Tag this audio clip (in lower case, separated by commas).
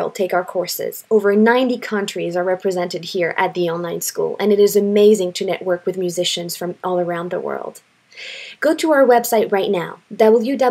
speech